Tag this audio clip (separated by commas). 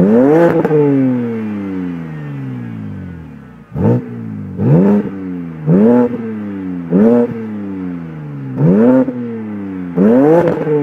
vroom, Vehicle, Car